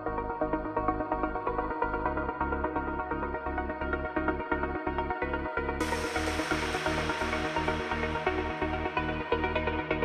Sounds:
electronic dance music, music

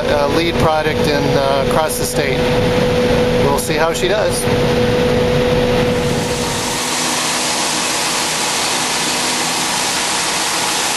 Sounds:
speech, outside, rural or natural

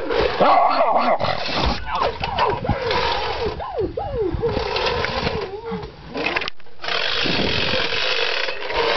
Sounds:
dog, animal, bow-wow, whimper (dog), domestic animals

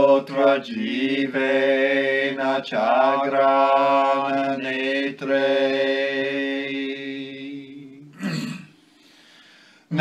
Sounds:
mantra

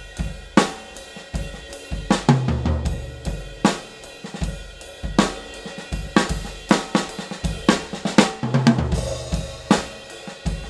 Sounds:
drum kit, playing drum kit, drum, percussion, bass drum, rimshot, snare drum

